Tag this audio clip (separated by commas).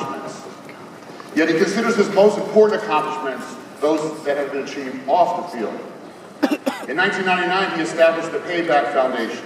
Male speech, Speech